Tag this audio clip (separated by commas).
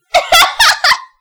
Laughter, Human voice